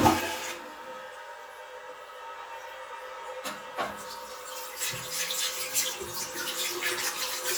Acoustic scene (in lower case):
restroom